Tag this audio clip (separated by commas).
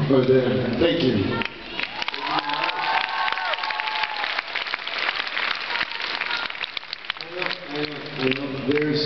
Speech